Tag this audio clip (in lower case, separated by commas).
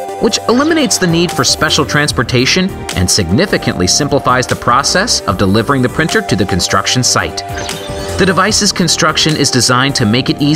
music, speech